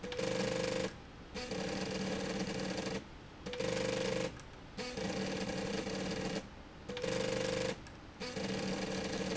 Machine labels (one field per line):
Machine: slide rail